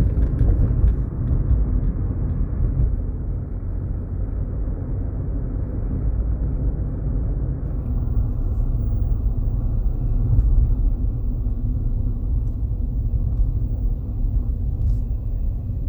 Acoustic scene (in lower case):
car